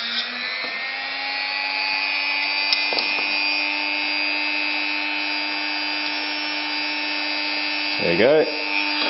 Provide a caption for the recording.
A drill revs up loudly nearby, and then a person talks